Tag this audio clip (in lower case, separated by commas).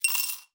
glass, coin (dropping), home sounds